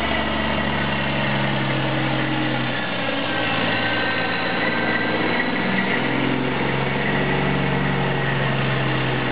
A large motor vehicle engine is running and slows.